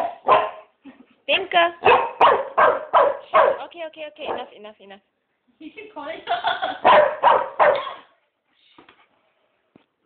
A dog barking and women speaking